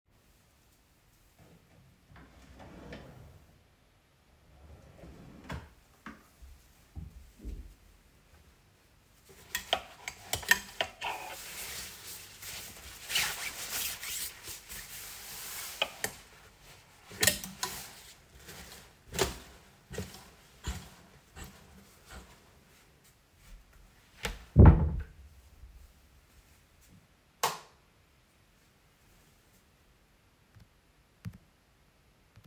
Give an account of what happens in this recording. I opened a drawer and then closed it. I took a hanger from the wardrobe which had a coat on it causing a clothing rustle sound